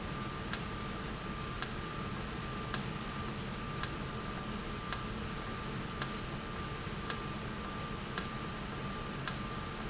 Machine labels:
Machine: valve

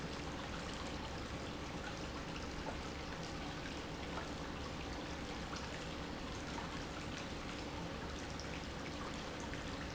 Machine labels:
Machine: pump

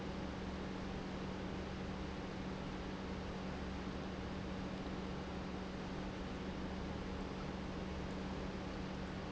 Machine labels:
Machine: pump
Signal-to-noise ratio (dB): 0 dB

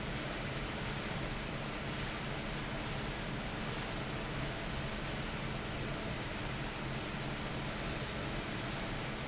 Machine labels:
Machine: fan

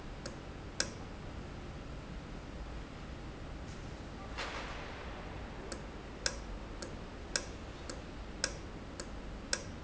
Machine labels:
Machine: valve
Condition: normal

